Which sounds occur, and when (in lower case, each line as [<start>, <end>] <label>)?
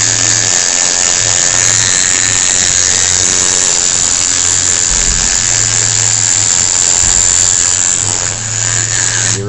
[0.00, 9.45] mechanisms